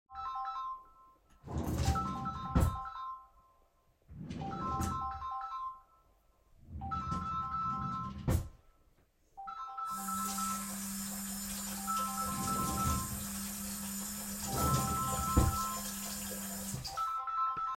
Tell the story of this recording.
The phone started ringing while I was sorting stuff in the drawer, turned on water to wash my hands to pick up the phone